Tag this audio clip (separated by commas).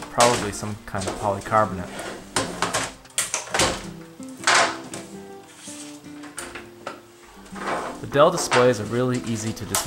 inside a small room, Music, Speech